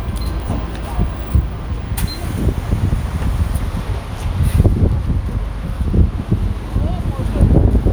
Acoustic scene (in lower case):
street